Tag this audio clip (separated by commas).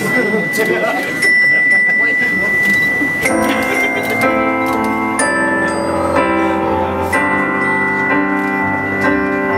Speech, Music